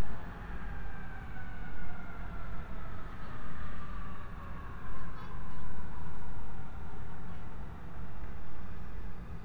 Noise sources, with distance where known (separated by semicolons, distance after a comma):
siren